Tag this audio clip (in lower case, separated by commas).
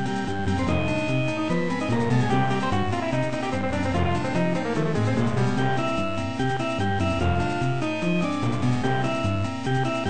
music, video game music